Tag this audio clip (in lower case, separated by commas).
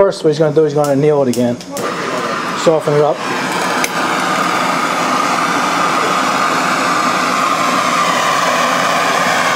inside a small room, speech